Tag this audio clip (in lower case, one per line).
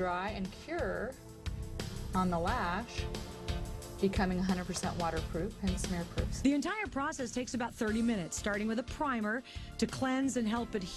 speech
music